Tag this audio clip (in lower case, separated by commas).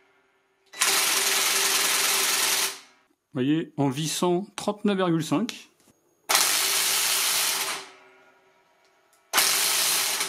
electric grinder grinding